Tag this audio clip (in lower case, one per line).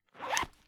zipper (clothing)
domestic sounds